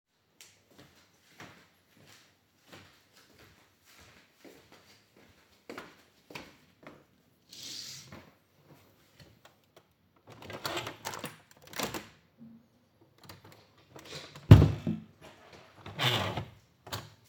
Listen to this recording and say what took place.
I walked towards the window opened the curtains and then the window.